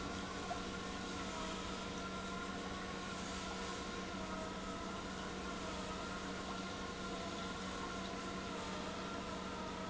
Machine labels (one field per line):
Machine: pump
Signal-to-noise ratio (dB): 0 dB